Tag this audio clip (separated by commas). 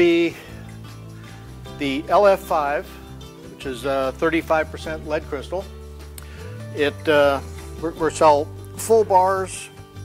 Music, Speech